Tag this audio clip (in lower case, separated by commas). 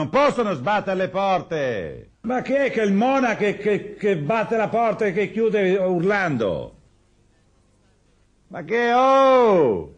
speech